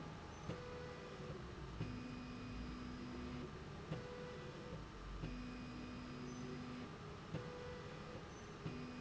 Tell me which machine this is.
slide rail